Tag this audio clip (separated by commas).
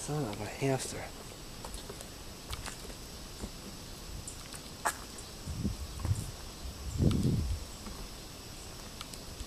outside, rural or natural, Speech